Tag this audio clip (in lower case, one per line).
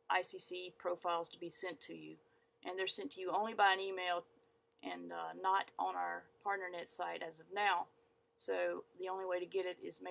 speech